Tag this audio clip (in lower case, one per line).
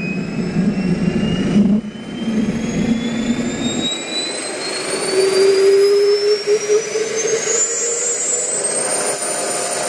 aircraft